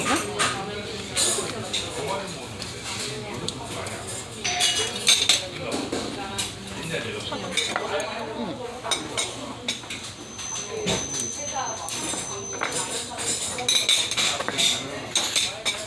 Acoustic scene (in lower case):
restaurant